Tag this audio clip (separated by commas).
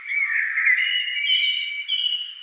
Bird, Wild animals, Animal